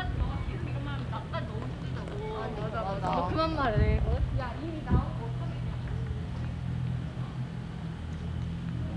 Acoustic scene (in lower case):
residential area